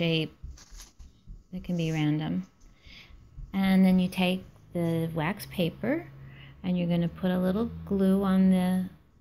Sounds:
speech

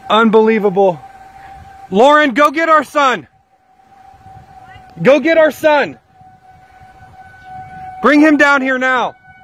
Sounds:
tornado roaring

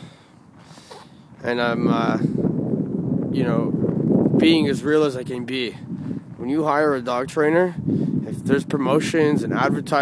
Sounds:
speech

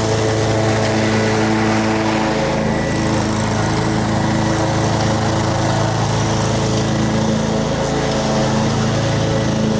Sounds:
lawn mowing

